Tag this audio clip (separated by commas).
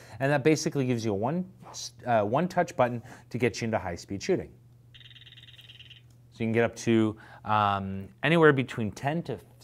Speech